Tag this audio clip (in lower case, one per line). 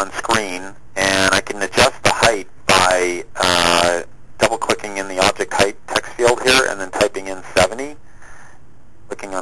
speech